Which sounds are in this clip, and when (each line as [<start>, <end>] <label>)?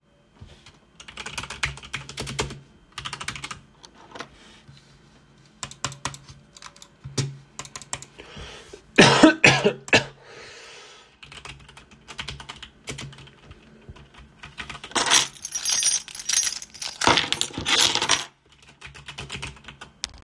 [0.99, 4.32] keyboard typing
[5.47, 8.69] keyboard typing
[11.20, 14.97] keyboard typing
[14.95, 18.37] keys
[18.74, 20.24] keyboard typing